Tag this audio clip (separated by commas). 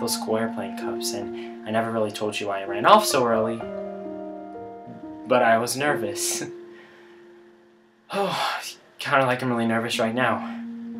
Music, Speech